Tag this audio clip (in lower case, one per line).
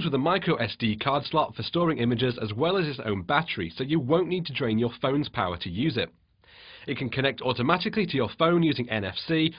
speech